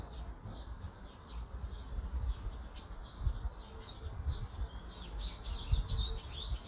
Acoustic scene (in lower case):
park